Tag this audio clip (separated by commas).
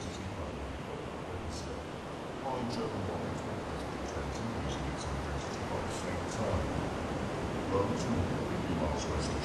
Speech